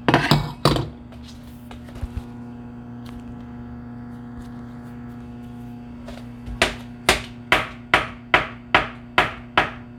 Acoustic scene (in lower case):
kitchen